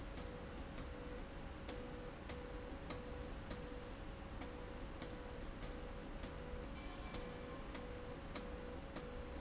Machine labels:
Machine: slide rail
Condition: abnormal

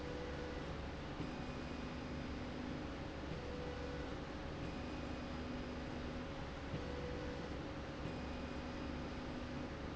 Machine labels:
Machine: slide rail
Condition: normal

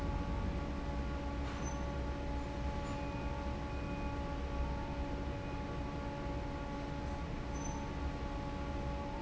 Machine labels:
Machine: fan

